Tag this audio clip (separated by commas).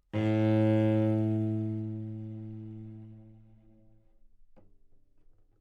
Musical instrument, Bowed string instrument, Music